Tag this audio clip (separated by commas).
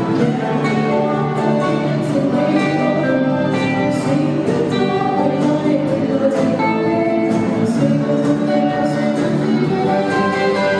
Music, Female singing